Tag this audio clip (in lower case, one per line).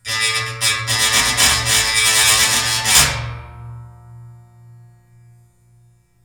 home sounds